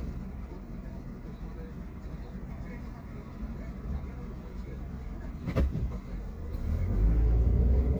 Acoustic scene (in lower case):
car